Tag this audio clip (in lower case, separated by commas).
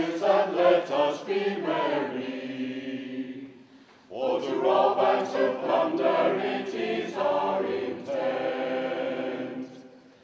singing choir, singing, choir